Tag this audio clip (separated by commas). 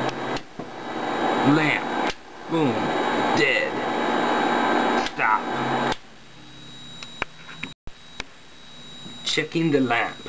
Speech